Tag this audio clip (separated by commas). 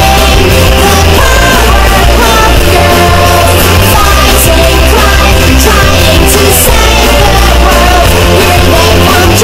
Punk rock, Music